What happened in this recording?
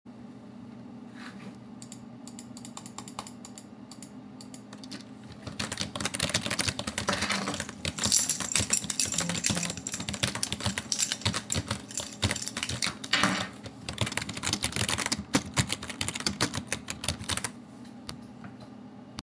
I turn on the tap to wash some dishes, with the sounds of running water and cutlery clinking overlapping.